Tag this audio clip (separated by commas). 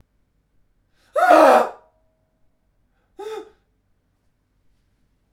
Screaming, Human voice